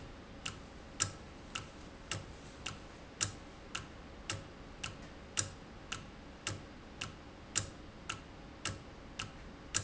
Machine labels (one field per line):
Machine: valve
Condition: normal